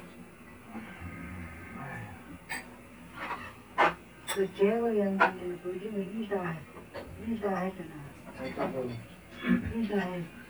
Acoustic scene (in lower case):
restaurant